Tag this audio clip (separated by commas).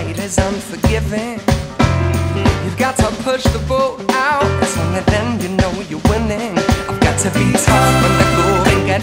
Music